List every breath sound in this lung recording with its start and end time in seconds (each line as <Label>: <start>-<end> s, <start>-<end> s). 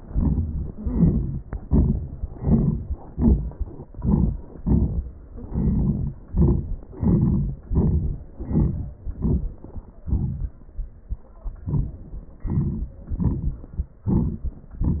Inhalation: 0.10-0.74 s, 1.51-2.26 s, 2.96-3.86 s, 4.49-5.28 s, 6.22-6.89 s, 7.67-8.43 s, 9.10-9.92 s, 11.10-12.35 s, 14.01-14.67 s
Exhalation: 0.75-1.53 s, 2.25-2.98 s, 3.85-4.50 s, 5.29-6.23 s, 6.90-7.66 s, 8.43-9.08 s, 9.93-11.07 s, 13.02-14.01 s
Crackles: 0.74-1.48 s, 5.29-6.27 s, 6.89-7.62 s